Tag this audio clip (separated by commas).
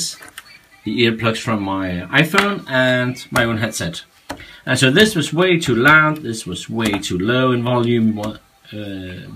Music, Speech